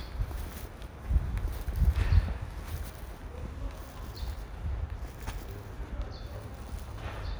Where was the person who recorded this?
in a residential area